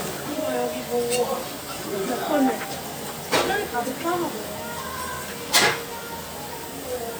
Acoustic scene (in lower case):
restaurant